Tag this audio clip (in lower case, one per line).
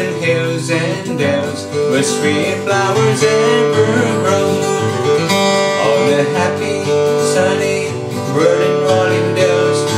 music
male singing